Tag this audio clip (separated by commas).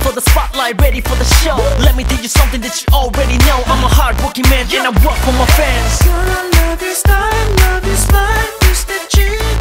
Music